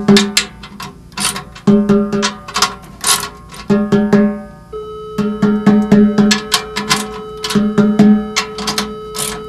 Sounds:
playing timbales

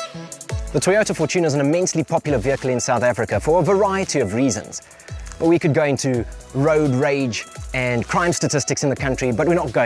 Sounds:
Speech, Music

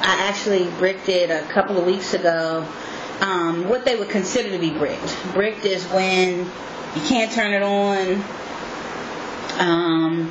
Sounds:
Speech

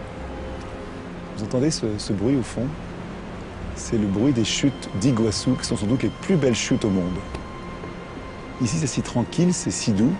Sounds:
Music, Speech

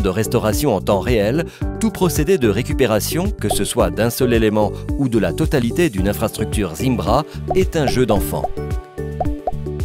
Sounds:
Speech, Music

